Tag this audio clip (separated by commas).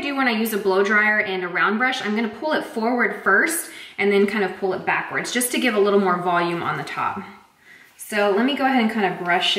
hair dryer drying